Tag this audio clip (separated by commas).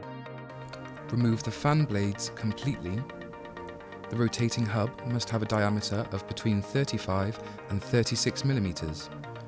Speech, Music